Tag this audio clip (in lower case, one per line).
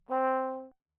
musical instrument
brass instrument
music